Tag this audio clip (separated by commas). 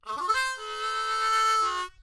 Music, Musical instrument, Harmonica